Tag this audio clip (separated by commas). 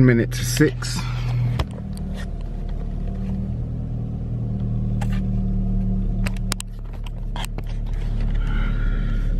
outside, urban or man-made, Speech